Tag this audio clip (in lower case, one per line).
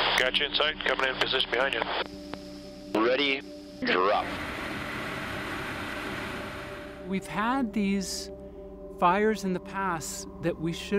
music
speech